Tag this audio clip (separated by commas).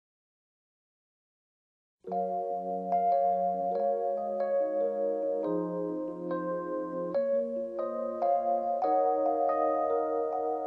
Music